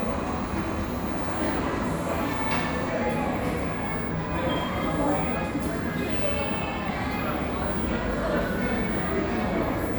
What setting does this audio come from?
cafe